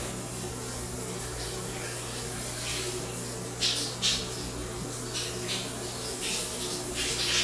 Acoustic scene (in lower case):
restroom